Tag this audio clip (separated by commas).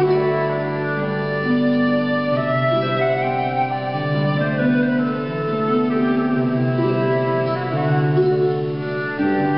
Harp, Pizzicato